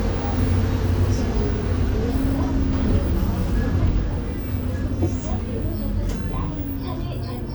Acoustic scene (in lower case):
bus